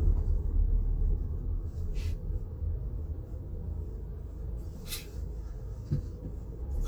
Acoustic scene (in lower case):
car